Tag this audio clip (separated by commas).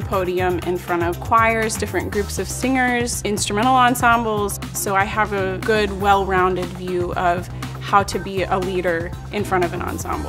Speech, Music